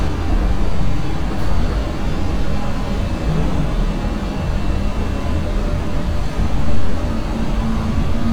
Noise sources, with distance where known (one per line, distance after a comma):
large-sounding engine, near